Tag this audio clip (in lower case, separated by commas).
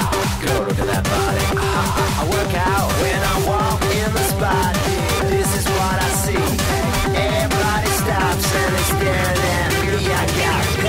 speech, music